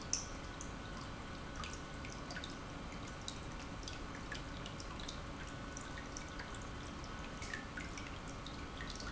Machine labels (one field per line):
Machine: pump